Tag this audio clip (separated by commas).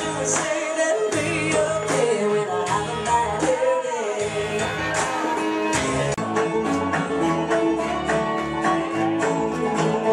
Country, Music